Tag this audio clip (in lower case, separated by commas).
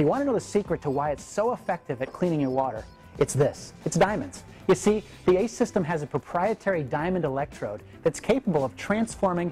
music, speech